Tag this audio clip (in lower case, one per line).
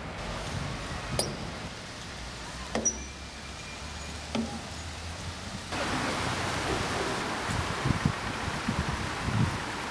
vehicle
water vehicle